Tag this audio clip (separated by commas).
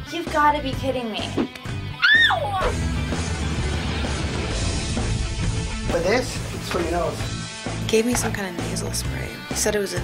Music, Speech